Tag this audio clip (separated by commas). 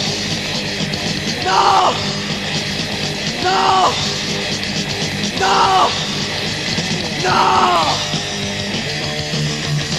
Cacophony, Music